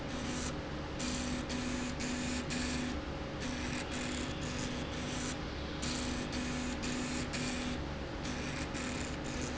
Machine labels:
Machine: slide rail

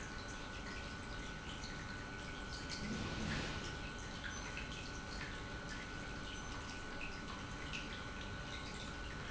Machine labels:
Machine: pump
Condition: normal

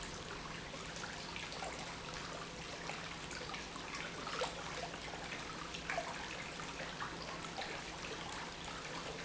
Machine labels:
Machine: pump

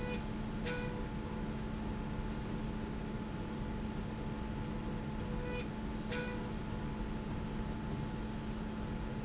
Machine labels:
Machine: slide rail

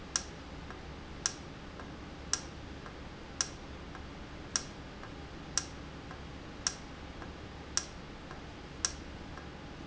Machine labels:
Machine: valve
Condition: normal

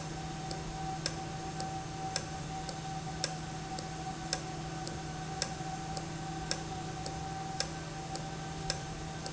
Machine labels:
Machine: valve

